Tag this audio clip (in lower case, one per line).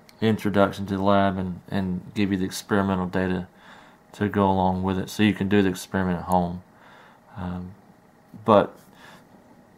speech